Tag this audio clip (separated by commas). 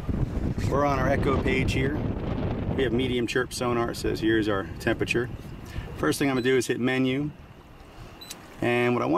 Speech